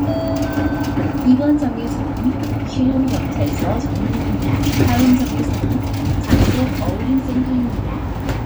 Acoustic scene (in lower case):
bus